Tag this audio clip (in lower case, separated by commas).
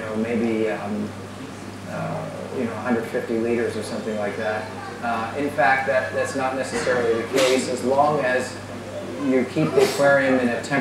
speech